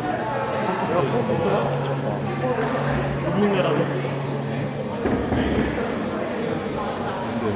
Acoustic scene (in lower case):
cafe